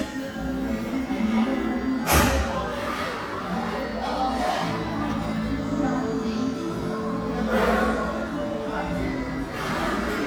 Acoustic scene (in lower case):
crowded indoor space